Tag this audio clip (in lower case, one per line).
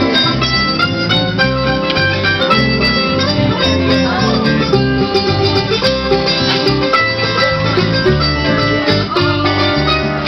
gospel music
music